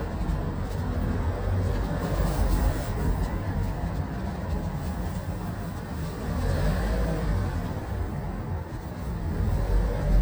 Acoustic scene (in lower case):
car